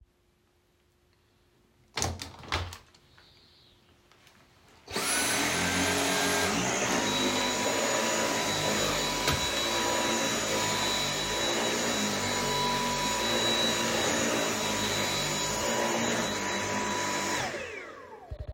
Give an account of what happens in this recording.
I opened the window at the beginning of the scene. After that, I started using the vacuum cleaner.